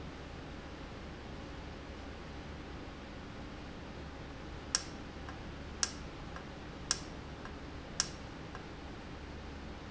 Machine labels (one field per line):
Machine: valve